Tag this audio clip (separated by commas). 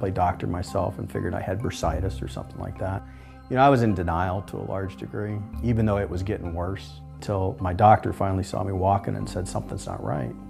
Speech, Music